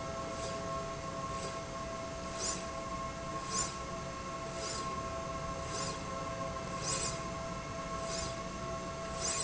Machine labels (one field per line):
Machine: slide rail